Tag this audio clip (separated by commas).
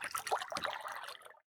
splatter, Liquid